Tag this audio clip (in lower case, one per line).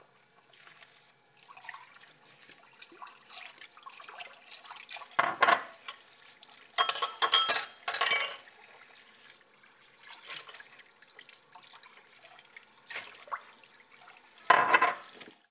domestic sounds
sink (filling or washing)